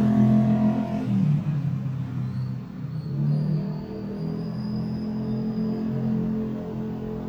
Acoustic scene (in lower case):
street